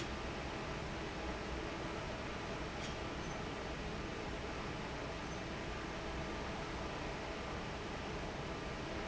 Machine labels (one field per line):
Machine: fan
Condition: normal